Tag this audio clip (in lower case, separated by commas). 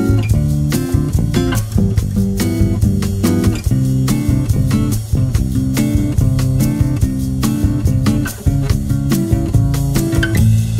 music